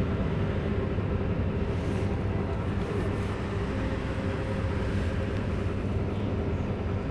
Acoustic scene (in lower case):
bus